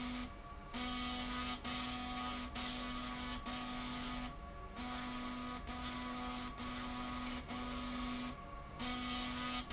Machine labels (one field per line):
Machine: slide rail